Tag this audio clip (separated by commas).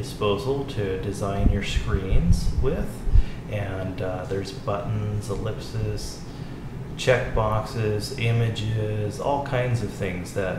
Speech